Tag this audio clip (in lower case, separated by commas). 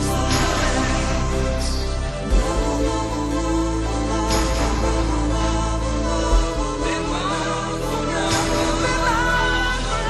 music